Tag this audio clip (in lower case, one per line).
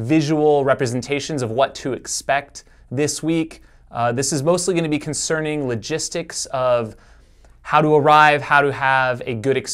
inside a small room
speech